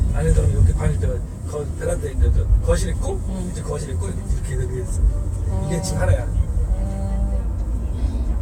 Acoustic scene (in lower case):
car